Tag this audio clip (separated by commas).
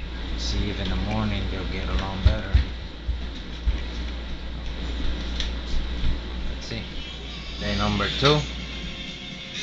Speech, Music